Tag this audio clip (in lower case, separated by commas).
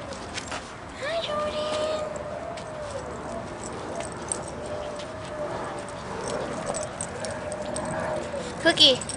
pets, speech, animal